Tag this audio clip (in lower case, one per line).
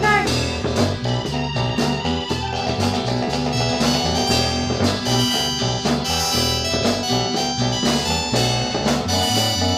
music